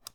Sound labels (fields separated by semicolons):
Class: switch; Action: being turned off; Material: plastic